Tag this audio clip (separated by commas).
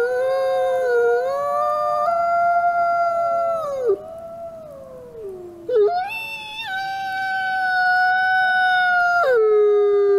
coyote howling